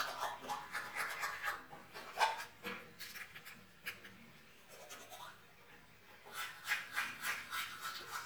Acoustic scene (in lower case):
restroom